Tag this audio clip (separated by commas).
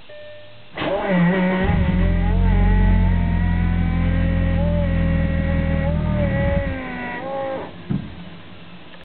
Vehicle, Car